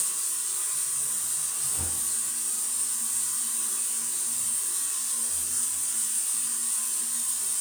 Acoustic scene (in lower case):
restroom